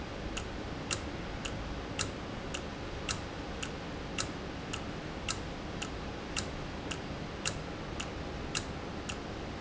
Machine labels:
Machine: valve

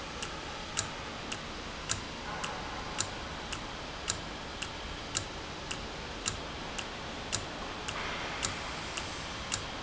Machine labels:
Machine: valve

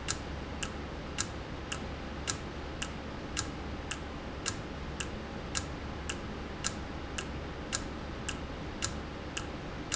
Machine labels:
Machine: valve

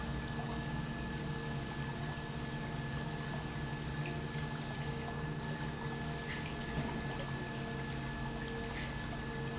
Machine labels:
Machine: pump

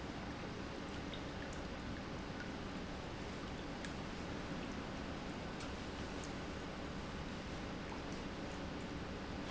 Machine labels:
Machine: pump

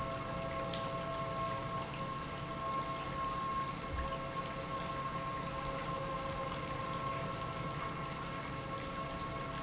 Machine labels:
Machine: pump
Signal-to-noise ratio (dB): -6 dB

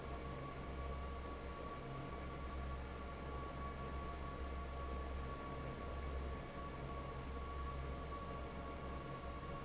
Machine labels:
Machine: fan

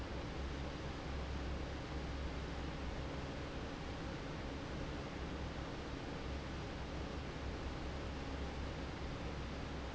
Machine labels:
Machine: fan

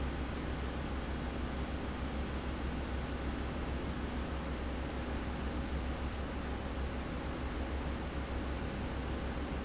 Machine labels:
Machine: fan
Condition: abnormal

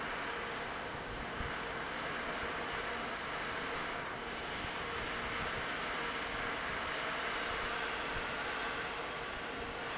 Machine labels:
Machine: fan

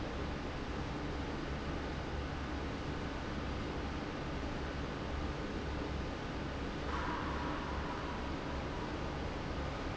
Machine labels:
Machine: fan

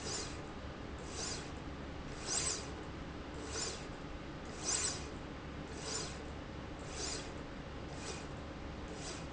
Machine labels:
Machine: slide rail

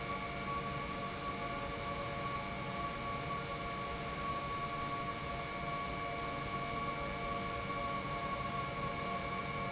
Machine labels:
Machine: pump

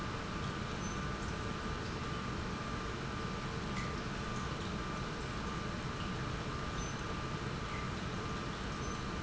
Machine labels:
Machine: pump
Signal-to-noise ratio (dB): -6 dB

